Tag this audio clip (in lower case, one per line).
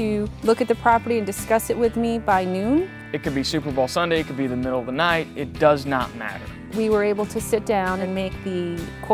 speech
music